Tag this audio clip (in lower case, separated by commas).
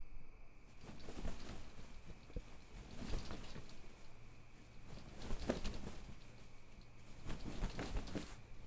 wind